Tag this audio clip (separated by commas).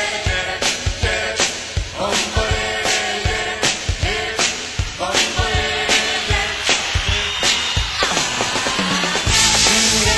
Music